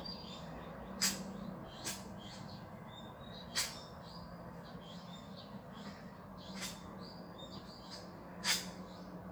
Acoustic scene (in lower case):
park